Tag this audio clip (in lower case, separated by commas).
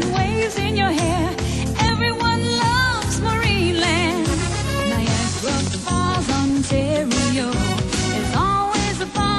music, pop music